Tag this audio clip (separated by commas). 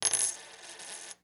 Domestic sounds, Coin (dropping)